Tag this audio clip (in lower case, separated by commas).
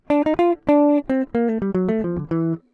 music, musical instrument, plucked string instrument, guitar